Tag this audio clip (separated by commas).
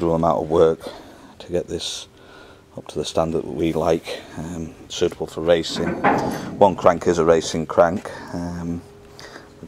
Speech